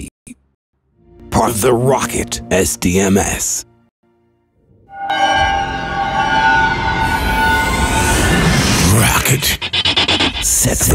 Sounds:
Music, Speech

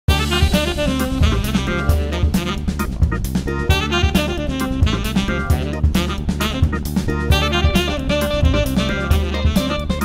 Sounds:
Music

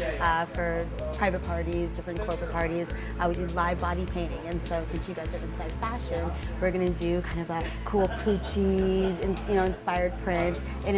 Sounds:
Music, Speech

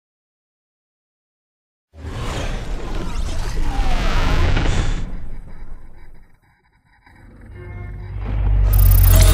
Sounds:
Silence, Music

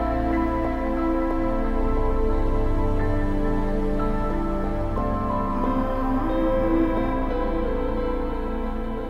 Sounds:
Music, Ambient music

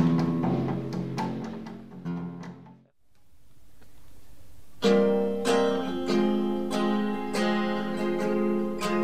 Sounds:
Music

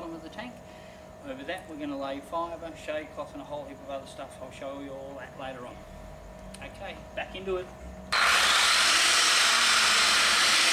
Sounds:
Speech, outside, urban or man-made

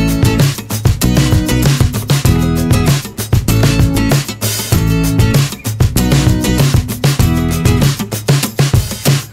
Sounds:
Music

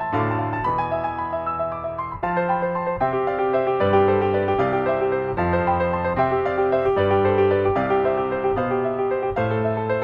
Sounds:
Keyboard (musical), Piano

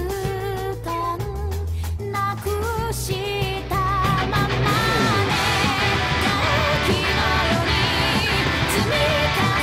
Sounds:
Acoustic guitar, Guitar, Musical instrument, Plucked string instrument, Music, Strum

